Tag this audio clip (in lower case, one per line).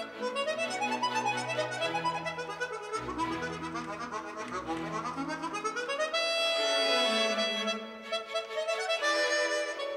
music
harmonica